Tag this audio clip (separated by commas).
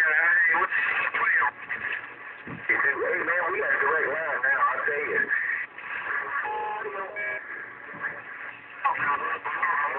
Speech, Radio